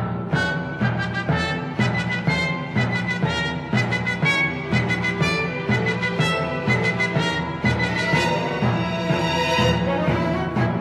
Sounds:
Music

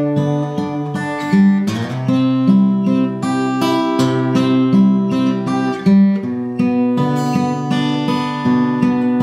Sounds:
Music

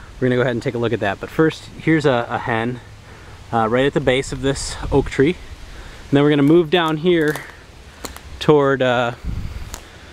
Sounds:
Speech

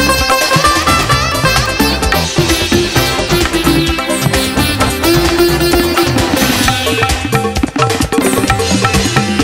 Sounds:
playing sitar

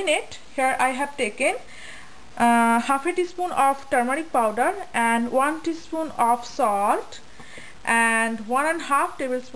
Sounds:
Speech

